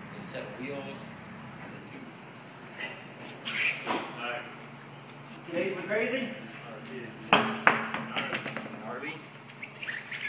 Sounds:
Speech

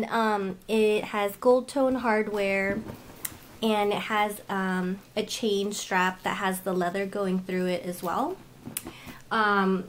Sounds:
Speech

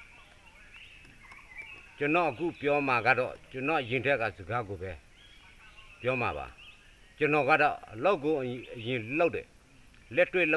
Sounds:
monologue, Male speech, Speech

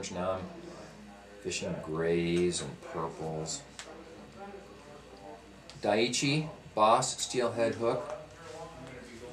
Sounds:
Speech

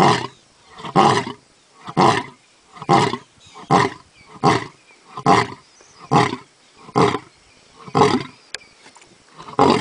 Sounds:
Wild animals, roaring cats, lions growling, Roar, Animal

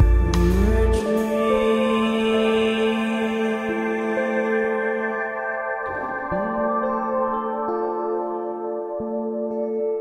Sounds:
Independent music, Music

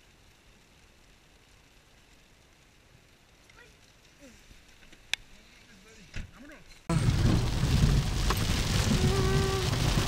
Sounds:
volcano explosion

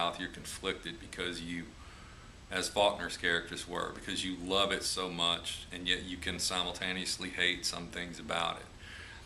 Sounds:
Speech

